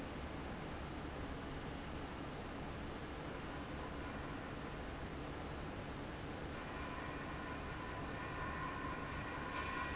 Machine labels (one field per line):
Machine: fan